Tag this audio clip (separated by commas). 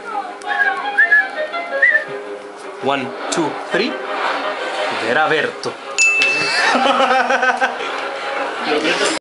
Music, Speech